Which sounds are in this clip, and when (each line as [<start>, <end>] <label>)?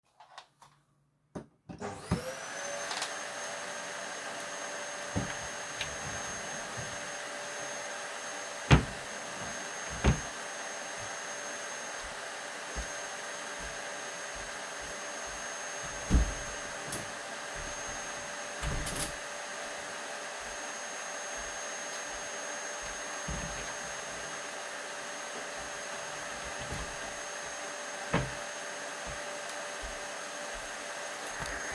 [1.79, 31.74] vacuum cleaner
[8.46, 10.50] wardrobe or drawer
[16.06, 17.26] window
[18.55, 19.33] window
[28.03, 28.39] wardrobe or drawer